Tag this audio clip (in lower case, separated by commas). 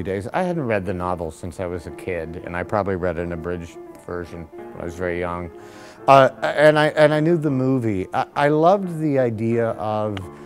music, speech